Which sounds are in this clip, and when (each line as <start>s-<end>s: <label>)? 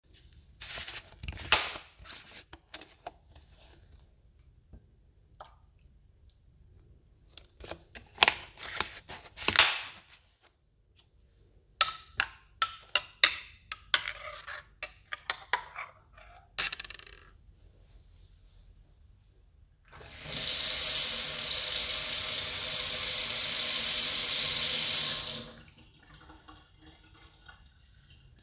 11.8s-17.4s: cutlery and dishes
19.9s-28.4s: running water